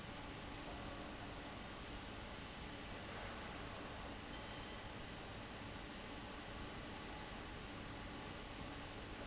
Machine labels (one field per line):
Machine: fan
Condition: abnormal